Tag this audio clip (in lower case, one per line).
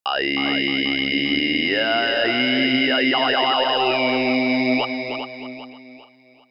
singing
human voice